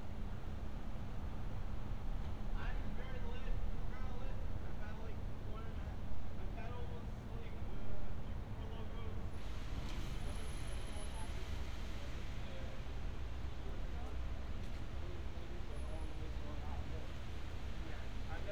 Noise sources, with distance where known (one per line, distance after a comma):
unidentified human voice